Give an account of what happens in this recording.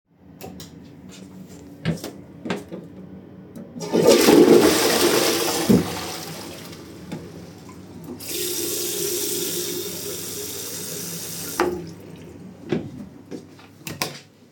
I was in the bathroom and flushed the toilet. Turned the sink faucet on and then off. Afterwards I exited the bathroom and turned the light off